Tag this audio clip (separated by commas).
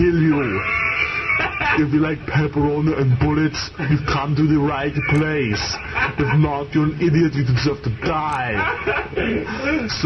Speech